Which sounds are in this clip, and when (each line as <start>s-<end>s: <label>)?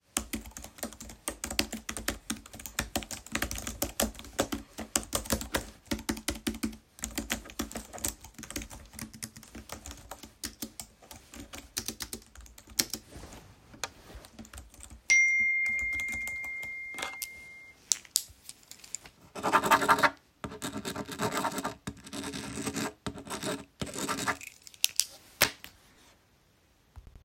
0.0s-17.4s: keyboard typing
15.0s-17.9s: phone ringing